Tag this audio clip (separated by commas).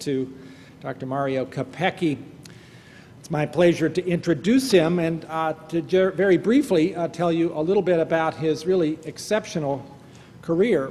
Speech